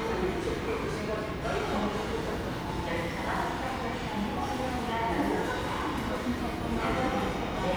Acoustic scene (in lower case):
subway station